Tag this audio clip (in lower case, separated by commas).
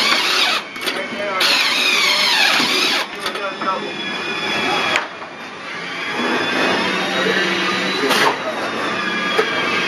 air brake, speech